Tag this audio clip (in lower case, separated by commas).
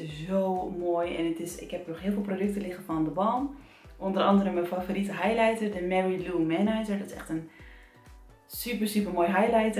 speech